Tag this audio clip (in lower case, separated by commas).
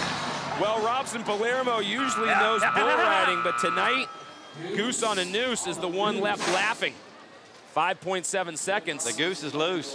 speech